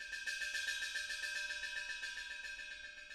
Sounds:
Musical instrument, Music, Percussion, Gong

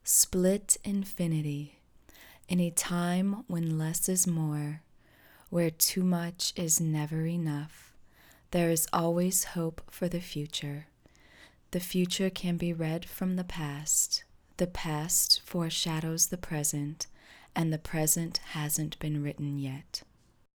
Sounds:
Speech, Female speech, Human voice

